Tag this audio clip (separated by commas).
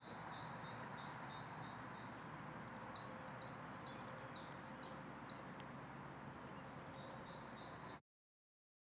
Animal, Wild animals, bird call, Chirp, Bird